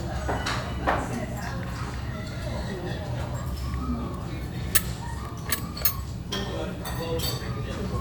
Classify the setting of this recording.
restaurant